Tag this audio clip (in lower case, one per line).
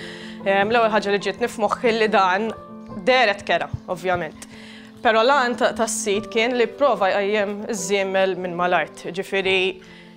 music
speech